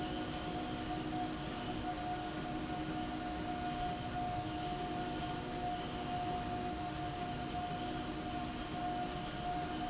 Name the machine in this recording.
slide rail